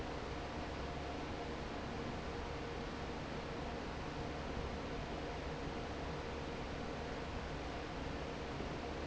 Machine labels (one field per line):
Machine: fan